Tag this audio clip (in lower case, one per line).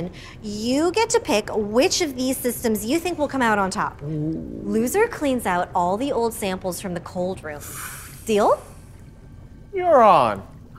speech